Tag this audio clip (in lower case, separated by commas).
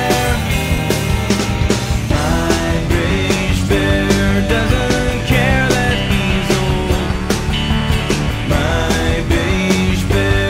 music, angry music